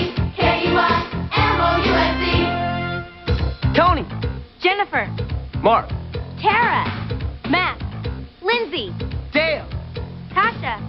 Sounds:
Music, Speech

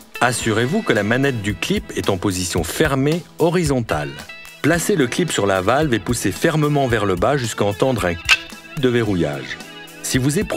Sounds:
Music, Speech

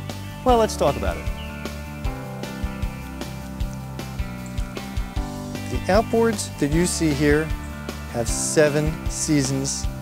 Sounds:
Speech, Music

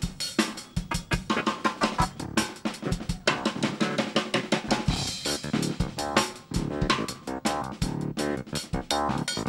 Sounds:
Snare drum, Percussion, Drum roll, Drum, Bass drum, Rimshot, Drum kit

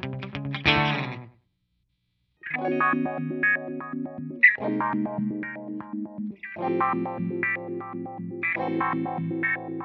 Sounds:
Music

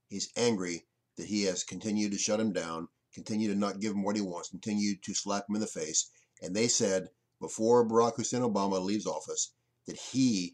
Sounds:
Speech

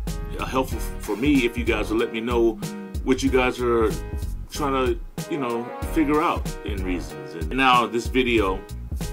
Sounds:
Music, Speech

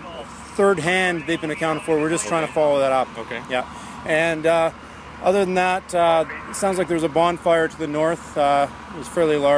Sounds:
Speech

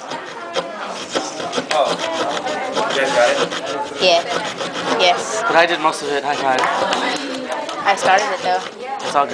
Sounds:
Speech

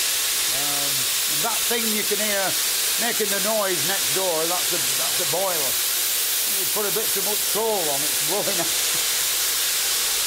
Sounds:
Speech

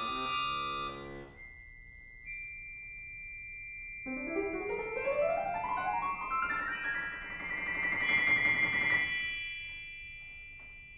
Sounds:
Accordion

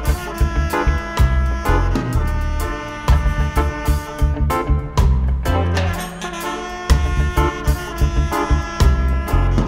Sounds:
Music, Reggae

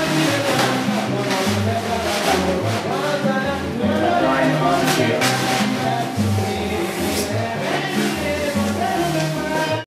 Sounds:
Music

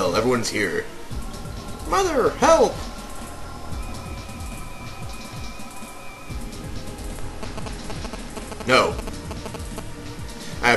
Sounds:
Music, Speech

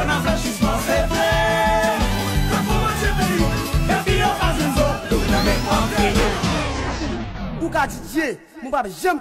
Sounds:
Music, Speech, Salsa music

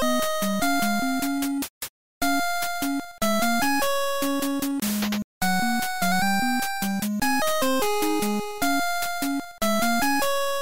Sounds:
Video game music

